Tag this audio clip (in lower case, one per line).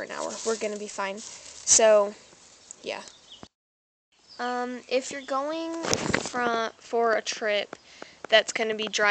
speech